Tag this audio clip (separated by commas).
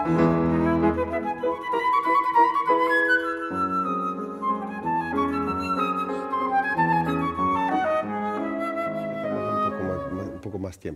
playing flute